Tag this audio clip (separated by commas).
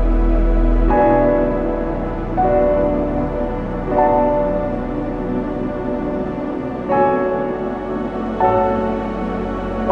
Sad music, Music